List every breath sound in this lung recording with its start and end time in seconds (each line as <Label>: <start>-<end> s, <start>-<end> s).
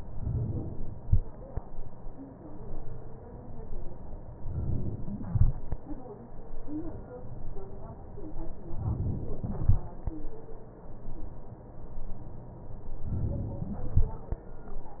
Inhalation: 4.41-5.35 s, 8.73-9.67 s, 12.99-13.93 s
Exhalation: 5.32-6.61 s, 9.68-10.96 s